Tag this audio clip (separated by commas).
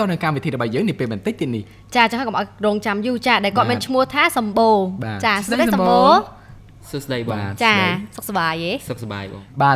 Speech, Radio